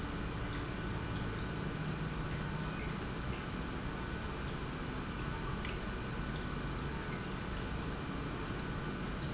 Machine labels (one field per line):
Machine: pump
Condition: normal